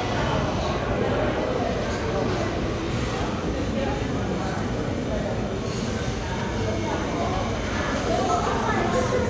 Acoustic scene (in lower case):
crowded indoor space